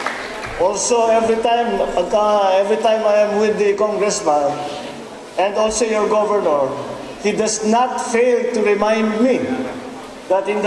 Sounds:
Speech, inside a large room or hall

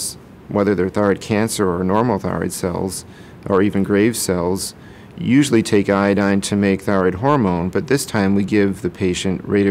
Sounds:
Speech

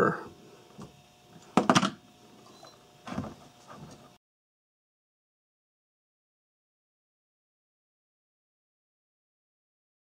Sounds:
inside a small room, Silence

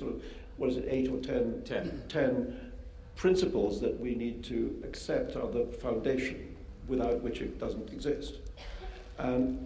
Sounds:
Speech, man speaking

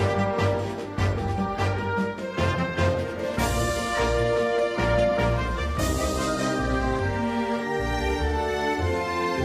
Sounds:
Music

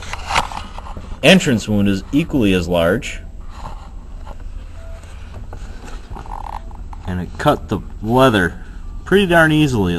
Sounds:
Speech, inside a small room

